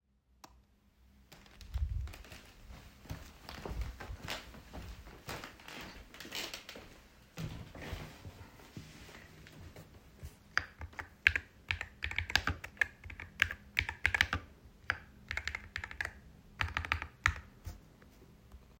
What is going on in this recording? I turned on the light, walked to my desk, sat down onto my office chair, and started typing.